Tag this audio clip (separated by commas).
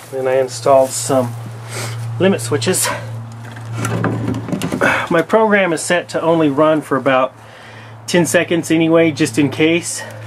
Speech